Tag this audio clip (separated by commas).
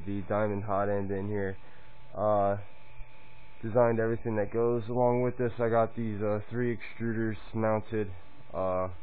Speech